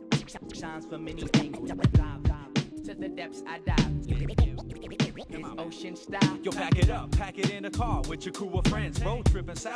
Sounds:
scratching (performance technique)

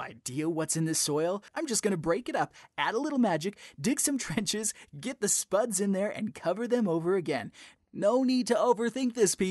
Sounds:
speech

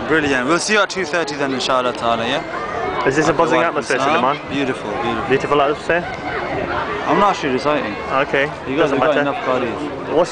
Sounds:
speech

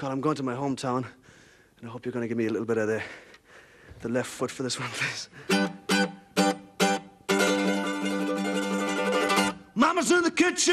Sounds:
speech, music

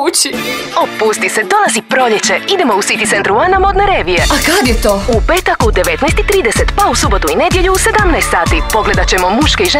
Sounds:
speech, music

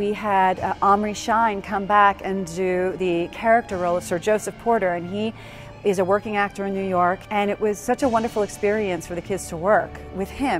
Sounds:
speech, music

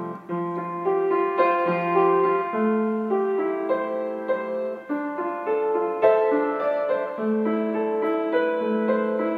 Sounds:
music, piano

